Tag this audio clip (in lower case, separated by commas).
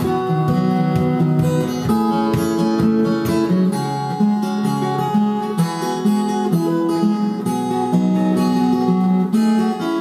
music, musical instrument, guitar, plucked string instrument